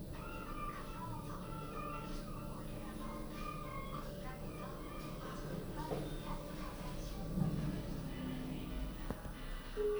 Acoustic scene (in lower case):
elevator